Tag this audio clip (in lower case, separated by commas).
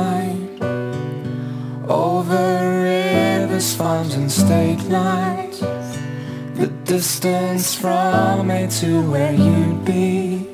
music